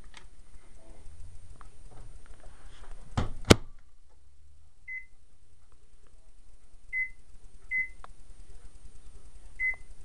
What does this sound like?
A small door shuts followed by digital beeping of an appliance